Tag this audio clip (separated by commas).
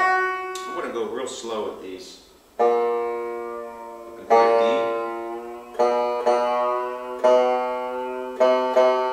Music, Speech